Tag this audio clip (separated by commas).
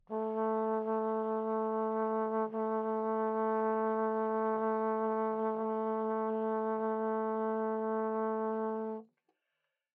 Musical instrument, Music, Brass instrument